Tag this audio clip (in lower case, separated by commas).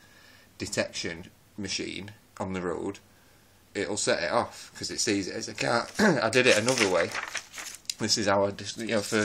speech